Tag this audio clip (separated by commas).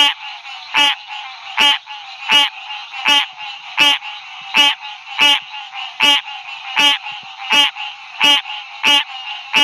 Frog, frog croaking, Croak